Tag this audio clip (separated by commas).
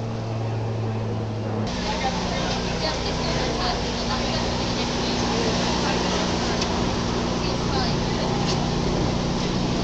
Speech